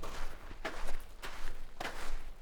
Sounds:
Walk

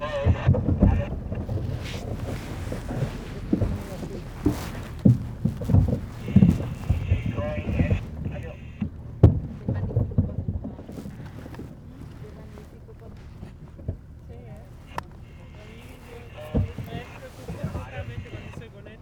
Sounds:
Water vehicle, Vehicle

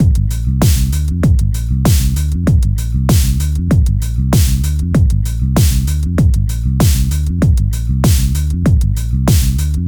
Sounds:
Musical instrument, Music, Bass guitar, Plucked string instrument, Guitar

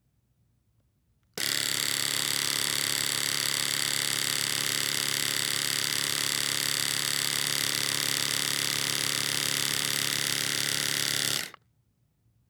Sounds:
home sounds

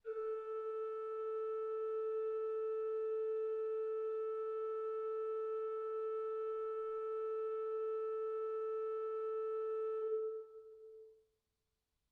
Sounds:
Musical instrument, Music, Keyboard (musical), Organ

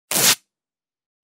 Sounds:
home sounds

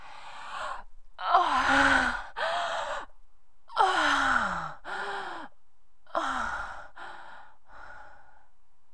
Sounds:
Respiratory sounds, Breathing

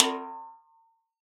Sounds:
Drum, Musical instrument, Music, Percussion, Snare drum

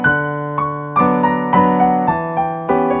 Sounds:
Music, Piano, Keyboard (musical), Musical instrument

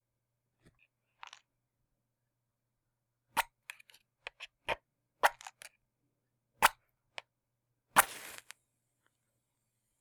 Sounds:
Fire

